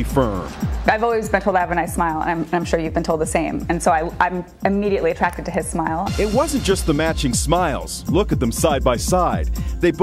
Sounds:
speech, music, inside a small room

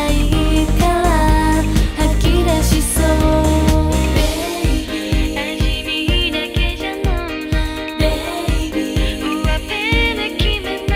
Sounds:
music

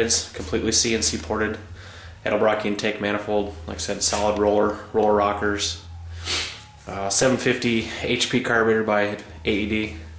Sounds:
speech

